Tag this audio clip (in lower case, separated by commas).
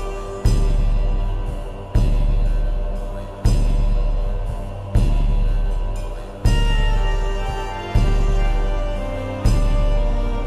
music